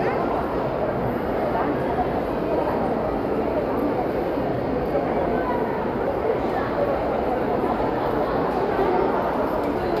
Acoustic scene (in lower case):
crowded indoor space